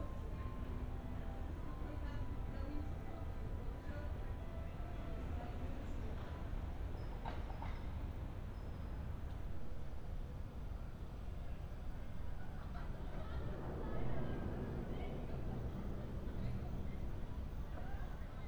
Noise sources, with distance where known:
person or small group talking, far

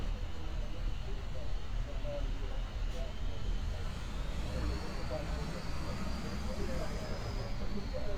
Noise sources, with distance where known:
engine of unclear size

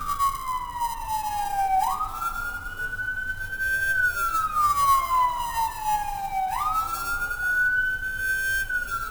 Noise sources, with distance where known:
siren, near

